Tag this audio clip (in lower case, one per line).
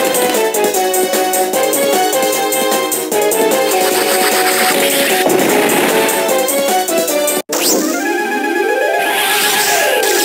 music